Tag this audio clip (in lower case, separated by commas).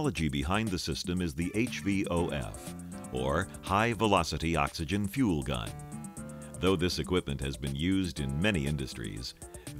speech, music